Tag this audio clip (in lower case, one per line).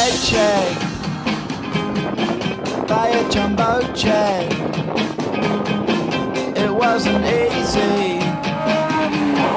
car passing by
music